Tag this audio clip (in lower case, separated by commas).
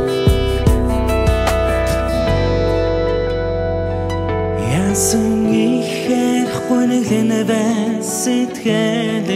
music